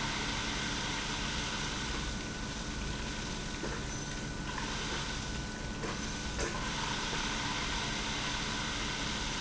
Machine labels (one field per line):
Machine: pump